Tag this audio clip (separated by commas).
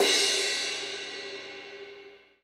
Music, Musical instrument, Percussion, Crash cymbal, Cymbal